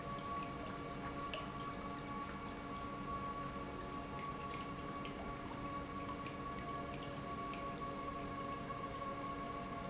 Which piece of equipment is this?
pump